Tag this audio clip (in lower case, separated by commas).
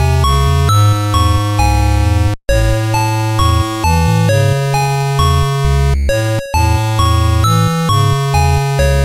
music